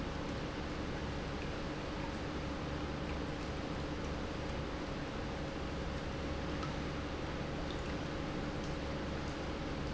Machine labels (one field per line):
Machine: pump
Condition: normal